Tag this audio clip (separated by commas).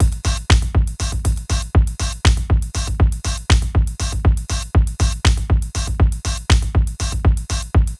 Drum kit, Musical instrument, Music, Percussion